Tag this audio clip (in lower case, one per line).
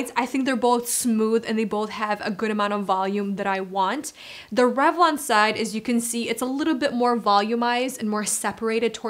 hair dryer drying